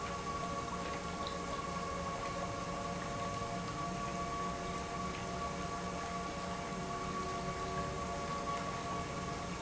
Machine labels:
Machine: pump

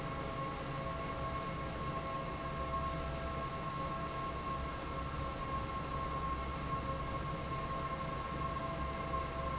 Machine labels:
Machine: fan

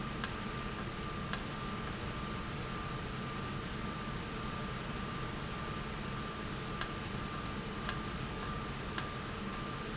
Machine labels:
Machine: valve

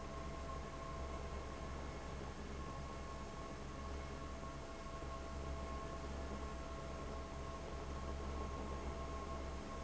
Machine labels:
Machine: fan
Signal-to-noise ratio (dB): 6 dB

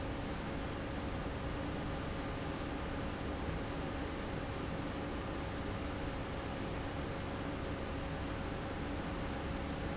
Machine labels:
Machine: fan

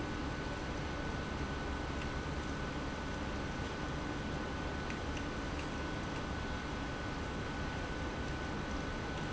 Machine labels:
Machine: pump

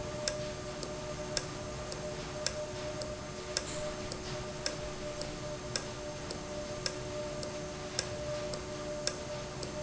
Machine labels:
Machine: valve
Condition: normal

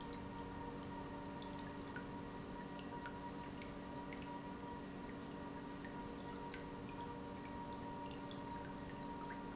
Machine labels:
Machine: pump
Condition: normal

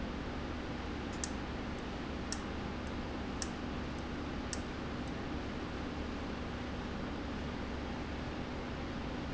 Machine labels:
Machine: valve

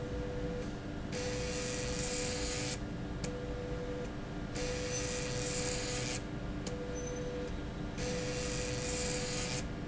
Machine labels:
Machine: slide rail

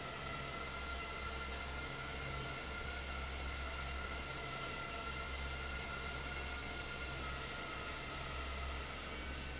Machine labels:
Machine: fan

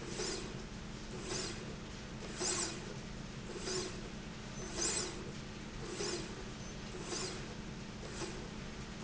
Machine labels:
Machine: slide rail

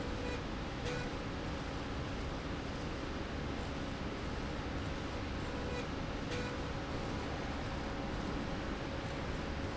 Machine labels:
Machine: slide rail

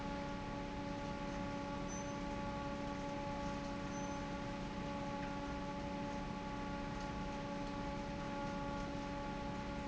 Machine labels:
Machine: fan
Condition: normal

